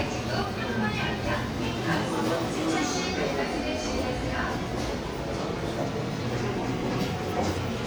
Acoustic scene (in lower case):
subway station